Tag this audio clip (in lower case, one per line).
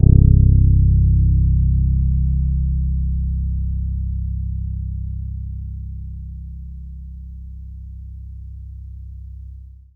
music
musical instrument
bass guitar
plucked string instrument
guitar